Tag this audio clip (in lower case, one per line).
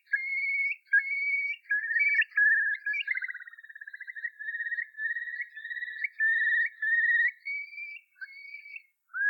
bird squawking